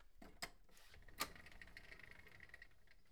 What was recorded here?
window opening